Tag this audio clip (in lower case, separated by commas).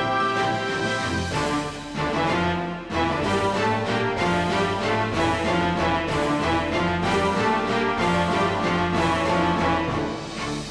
music, tender music, theme music, rhythm and blues